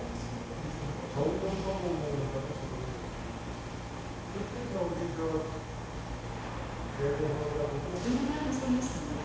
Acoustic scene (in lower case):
subway station